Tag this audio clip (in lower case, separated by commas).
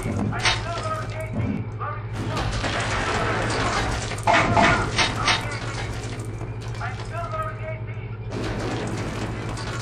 speech